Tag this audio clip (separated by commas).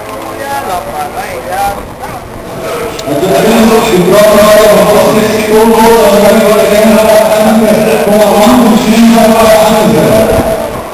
Speech